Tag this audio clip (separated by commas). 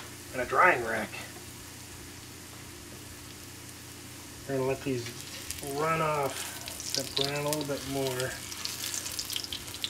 Frying (food), inside a small room, Speech